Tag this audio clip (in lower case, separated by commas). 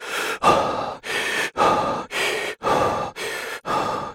respiratory sounds, breathing